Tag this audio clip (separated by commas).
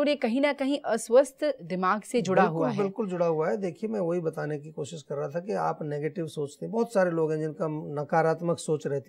Speech